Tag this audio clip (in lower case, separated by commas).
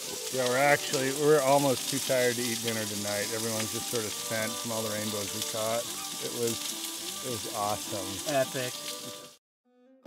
speech, music